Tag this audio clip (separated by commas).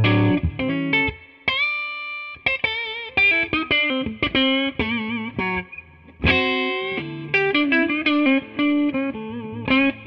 Music